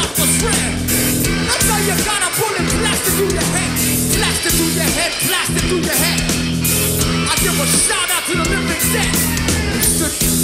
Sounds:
Rhythm and blues, Music

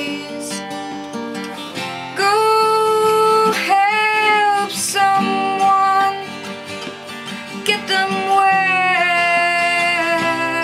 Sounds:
Singing, Music

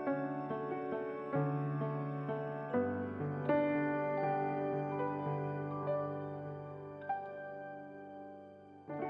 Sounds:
Music

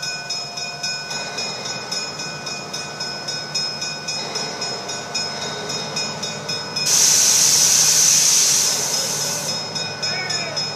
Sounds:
Steam, Rail transport, Speech, Train, Vehicle, train wagon

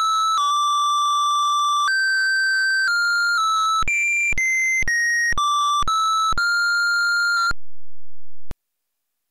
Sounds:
Music, Music for children

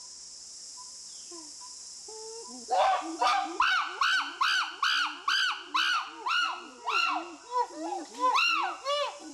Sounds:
chimpanzee pant-hooting

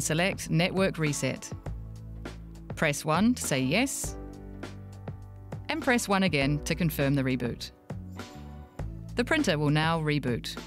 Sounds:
Speech, Music

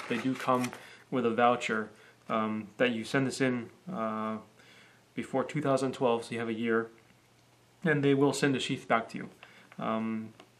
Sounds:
Speech

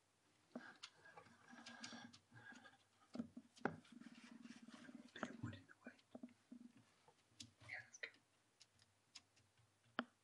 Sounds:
Speech

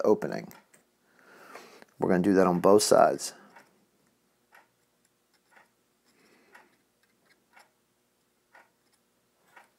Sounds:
Speech

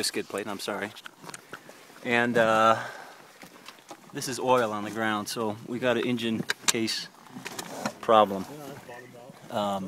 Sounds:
Speech

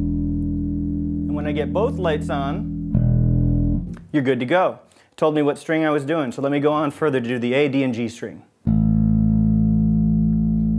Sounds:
Music, Speech

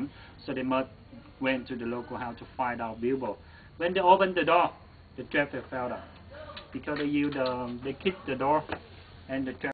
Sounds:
Speech

